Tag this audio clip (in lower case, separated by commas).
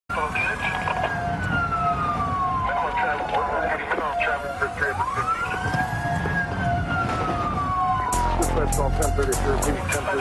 music, speech, police car (siren)